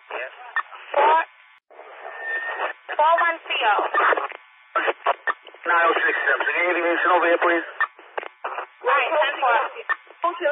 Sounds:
police radio chatter

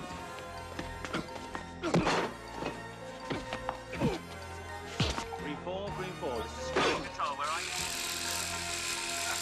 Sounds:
Speech, Music, inside a small room

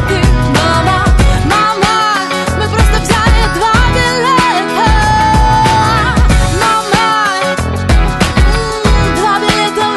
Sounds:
Music, Exciting music, Independent music

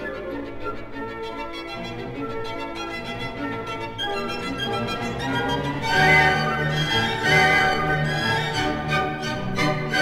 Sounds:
Musical instrument, Music, fiddle

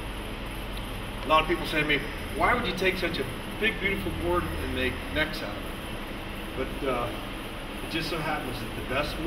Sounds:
Speech

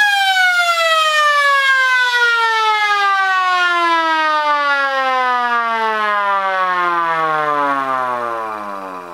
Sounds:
Siren, Vehicle

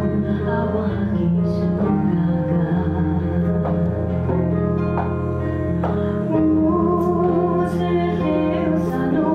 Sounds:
Music, Tender music

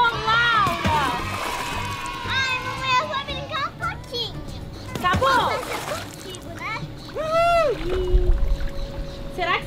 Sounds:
splashing water

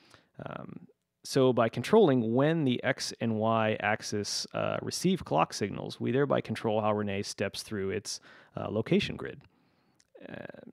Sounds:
Speech

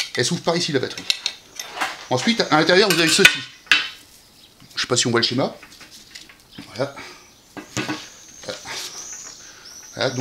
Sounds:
Speech

